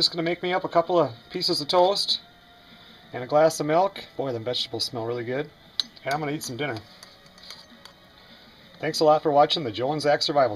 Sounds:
silverware

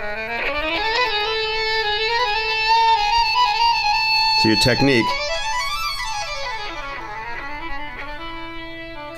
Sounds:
speech, music

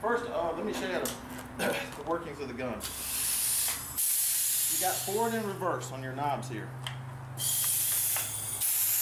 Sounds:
spray, speech

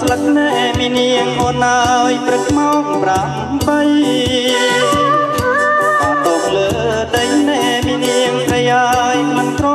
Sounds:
music

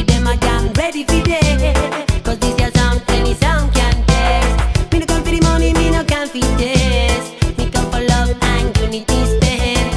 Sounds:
music, reggae

